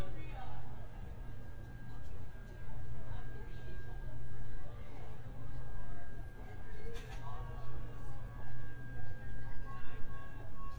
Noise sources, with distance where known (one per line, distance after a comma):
person or small group talking